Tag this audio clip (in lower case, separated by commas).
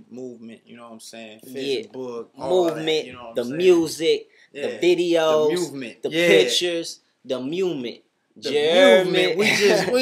speech